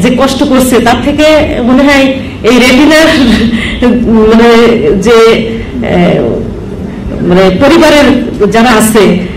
Speech by a single human female aimed at an audience